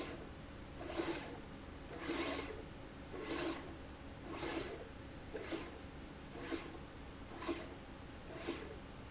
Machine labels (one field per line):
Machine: slide rail